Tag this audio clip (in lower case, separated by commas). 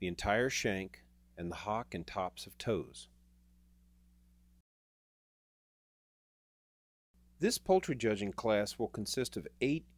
speech